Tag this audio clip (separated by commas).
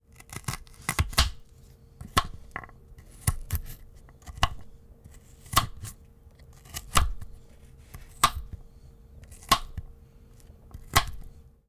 Domestic sounds